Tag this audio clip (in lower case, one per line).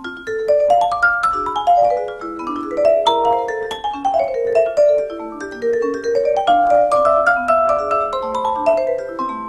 playing vibraphone